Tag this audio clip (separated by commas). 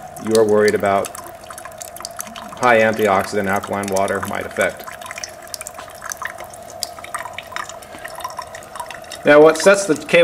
Water, Speech, Liquid